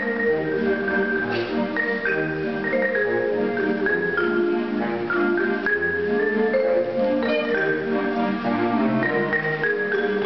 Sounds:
Glockenspiel, Marimba, Mallet percussion

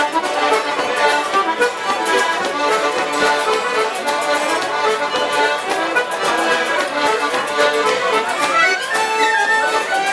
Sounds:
Music

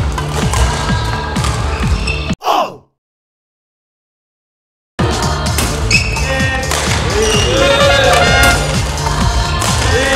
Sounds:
playing badminton

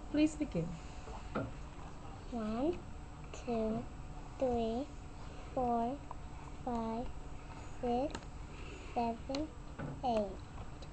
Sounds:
Speech

